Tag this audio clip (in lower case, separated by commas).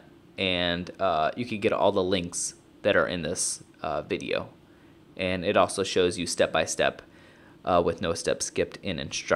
speech